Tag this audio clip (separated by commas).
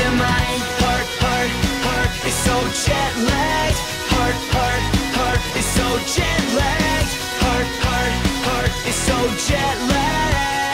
Exciting music, Music